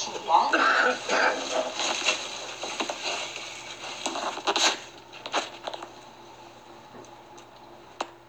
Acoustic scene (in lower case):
elevator